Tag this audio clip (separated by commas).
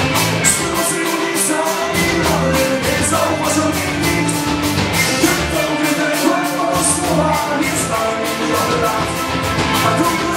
Music, Rock music, Punk rock, Musical instrument